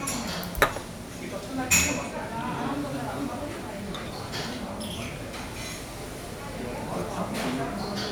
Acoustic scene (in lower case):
restaurant